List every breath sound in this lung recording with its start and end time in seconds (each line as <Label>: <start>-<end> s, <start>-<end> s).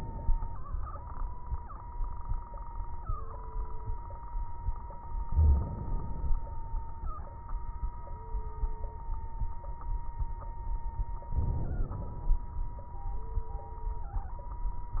Inhalation: 5.27-6.38 s, 11.30-12.41 s
Crackles: 5.24-6.38 s, 11.30-12.41 s